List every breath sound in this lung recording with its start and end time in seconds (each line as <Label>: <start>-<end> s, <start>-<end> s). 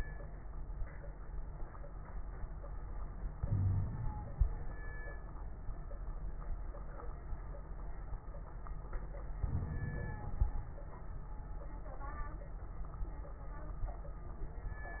Inhalation: 3.40-4.43 s, 9.41-10.54 s
Wheeze: 3.40-3.91 s
Crackles: 9.41-10.54 s